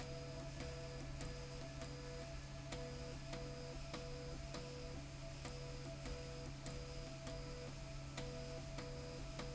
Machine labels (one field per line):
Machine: slide rail